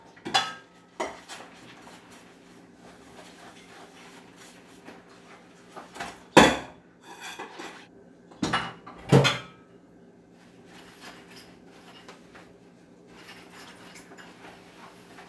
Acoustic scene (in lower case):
kitchen